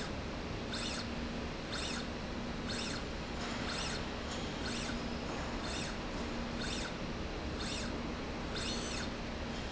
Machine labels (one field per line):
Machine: slide rail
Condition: normal